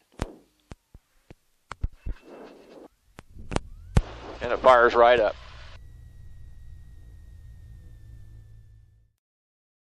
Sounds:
Speech

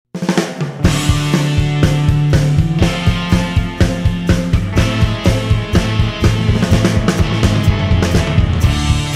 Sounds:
Music, Rock music

